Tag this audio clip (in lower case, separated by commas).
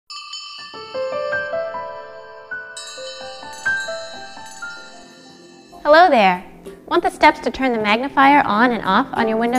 glockenspiel, marimba, mallet percussion